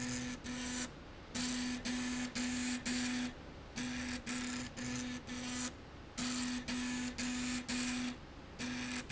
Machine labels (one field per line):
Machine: slide rail